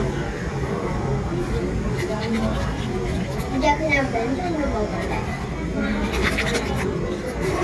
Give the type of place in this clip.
crowded indoor space